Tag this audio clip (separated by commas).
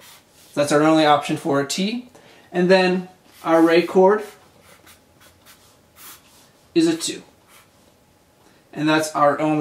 Speech